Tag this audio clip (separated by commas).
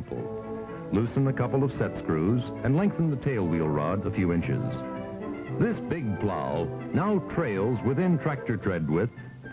Music, Speech